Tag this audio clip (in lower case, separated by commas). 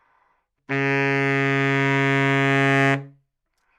musical instrument, music, woodwind instrument